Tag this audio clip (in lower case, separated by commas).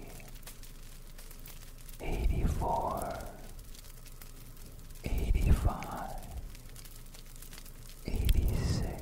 fire crackling